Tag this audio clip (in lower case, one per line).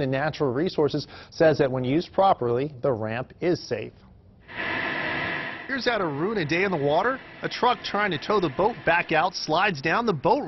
vehicle
speech